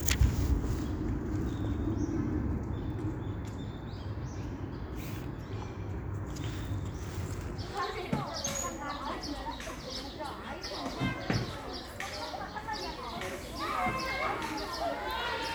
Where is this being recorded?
in a park